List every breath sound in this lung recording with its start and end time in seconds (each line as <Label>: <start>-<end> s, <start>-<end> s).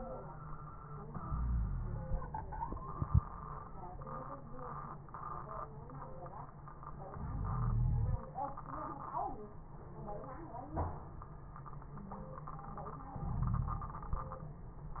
Inhalation: 1.22-2.14 s, 7.16-8.18 s, 13.18-14.09 s
Wheeze: 1.22-2.14 s, 7.16-8.18 s, 13.18-14.09 s